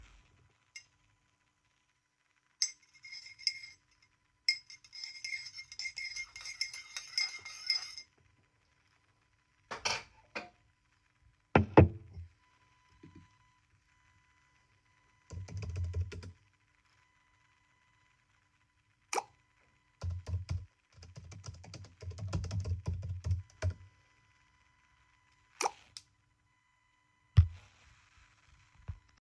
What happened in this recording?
I stirred my cup of tea with a spoon, then put the spoon on the table, I started typing and while typing, my phone received two notifications.